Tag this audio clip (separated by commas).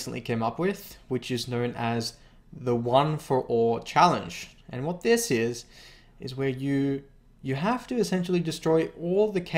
Speech